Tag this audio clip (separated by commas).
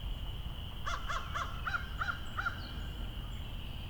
Animal, Bird, Crow, Wild animals